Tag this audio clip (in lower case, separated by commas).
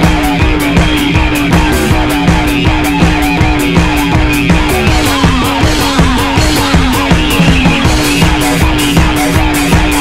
punk rock, music